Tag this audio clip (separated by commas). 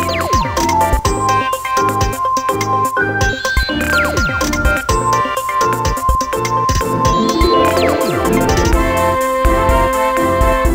Music